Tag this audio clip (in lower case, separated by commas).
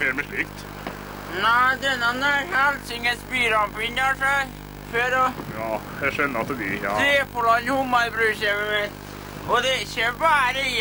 speech